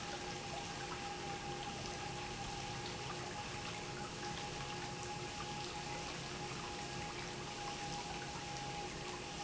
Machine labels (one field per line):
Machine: pump